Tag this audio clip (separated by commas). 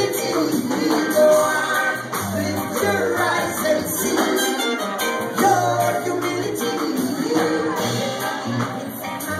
Music, Funk